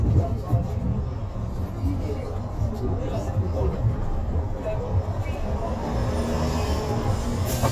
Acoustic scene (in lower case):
bus